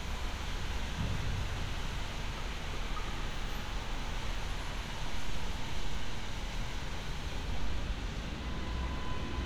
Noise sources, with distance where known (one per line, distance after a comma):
car horn, far